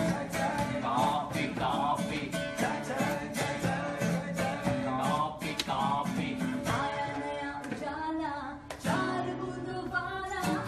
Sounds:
Music

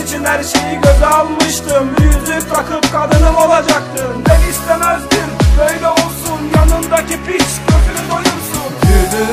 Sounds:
Music, Middle Eastern music

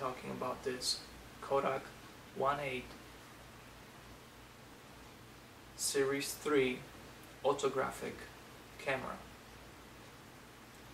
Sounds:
Speech

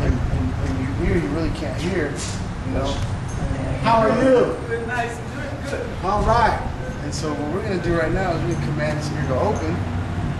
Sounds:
Speech

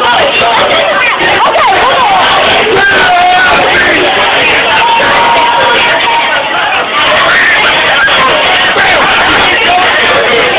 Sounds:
Crowd, Speech

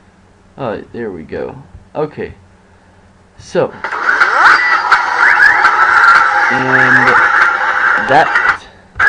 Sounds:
Speech

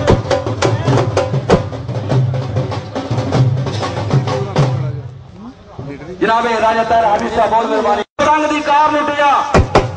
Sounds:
Speech, Music

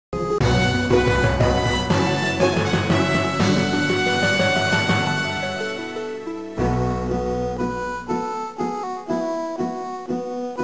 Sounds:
Music, Bowed string instrument

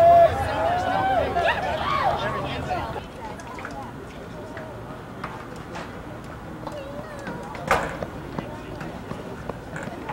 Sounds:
Speech

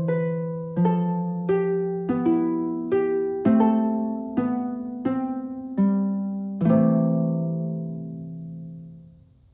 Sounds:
Harp, Pizzicato

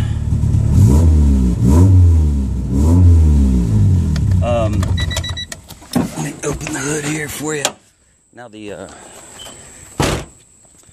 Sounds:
Vehicle, Car, Speech

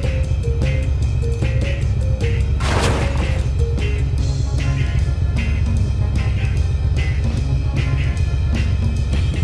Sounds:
Music

